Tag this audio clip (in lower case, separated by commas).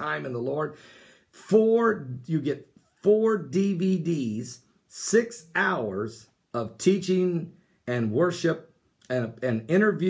speech